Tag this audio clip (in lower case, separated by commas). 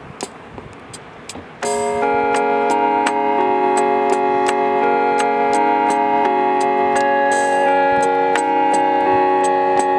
music